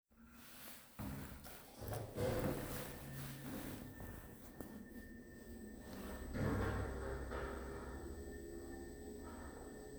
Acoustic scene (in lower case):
elevator